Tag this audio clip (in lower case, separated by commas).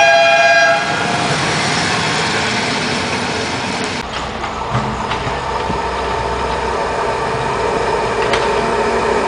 train, rail transport, vehicle, railroad car